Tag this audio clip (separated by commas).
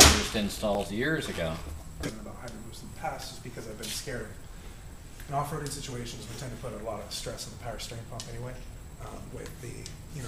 Speech